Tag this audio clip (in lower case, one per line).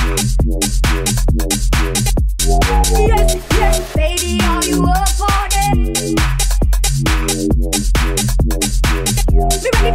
house music
pop music
music